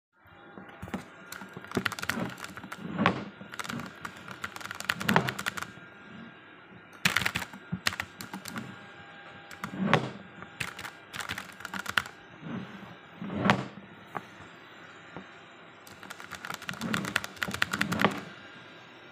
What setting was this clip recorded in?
bedroom